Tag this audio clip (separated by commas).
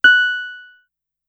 Music, Musical instrument, Keyboard (musical), Piano